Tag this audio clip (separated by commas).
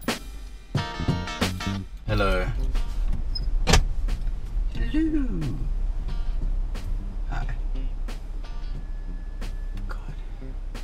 Speech, Music